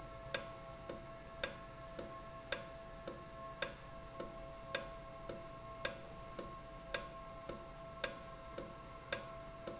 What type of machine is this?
valve